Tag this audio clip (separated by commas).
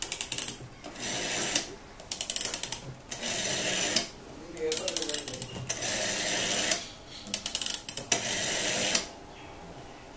Speech